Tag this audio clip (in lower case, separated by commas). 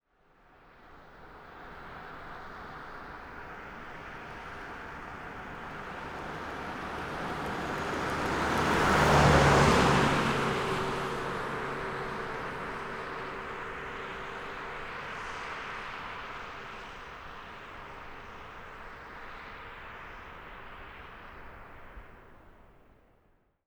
vehicle, car, motor vehicle (road), car passing by